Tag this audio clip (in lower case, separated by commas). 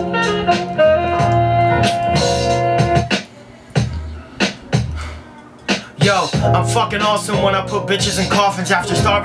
thud, music